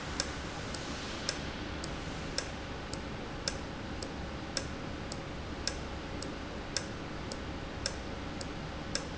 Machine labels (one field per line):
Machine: valve